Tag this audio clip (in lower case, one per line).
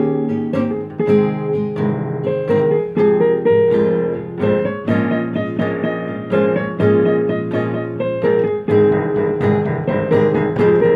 music
musical instrument